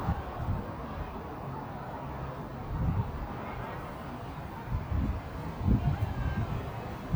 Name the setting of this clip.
residential area